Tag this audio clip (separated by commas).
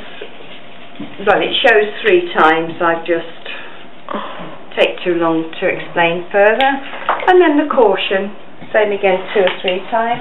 Speech